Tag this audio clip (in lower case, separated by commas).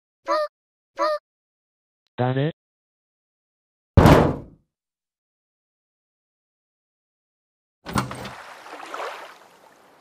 speech